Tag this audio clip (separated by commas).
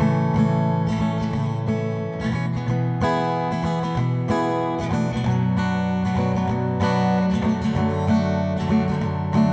Music